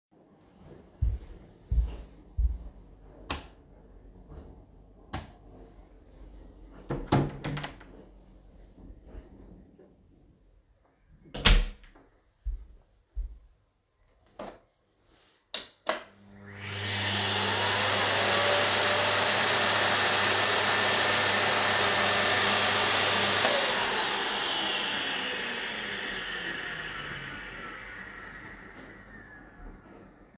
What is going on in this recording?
I walked to my closet, turned on/off the light, opened/closed the door. I then turned on a vacuum cleaner, let it run, and turned it off.